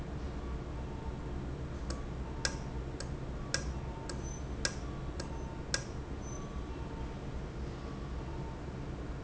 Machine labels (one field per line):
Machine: valve